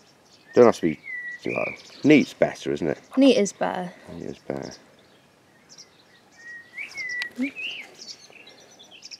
A man and woman talking with birds chirping and singing